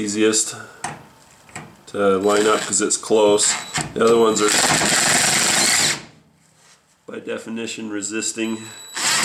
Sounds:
speech, inside a small room, tools

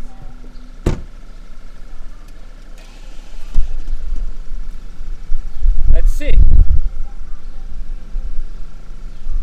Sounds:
speech

